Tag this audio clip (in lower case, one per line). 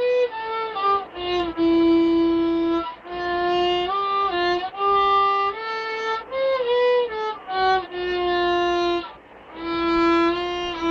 fiddle
music
musical instrument